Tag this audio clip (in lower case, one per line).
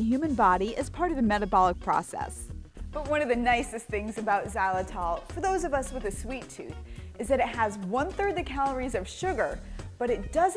music
speech